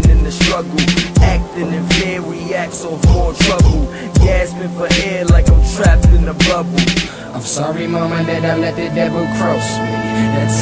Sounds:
Music

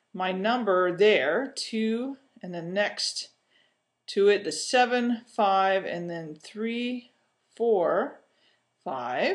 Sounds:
Speech

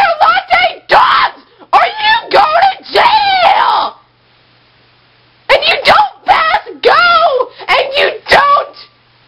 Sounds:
Speech

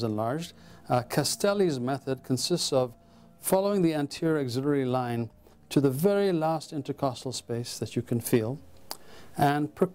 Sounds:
Speech

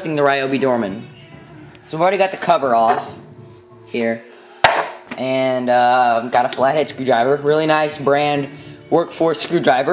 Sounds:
Speech

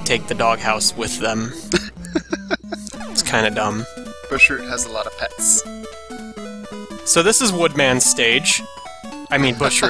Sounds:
Speech

